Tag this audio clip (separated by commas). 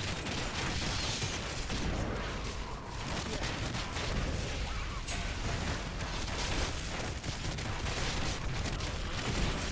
Speech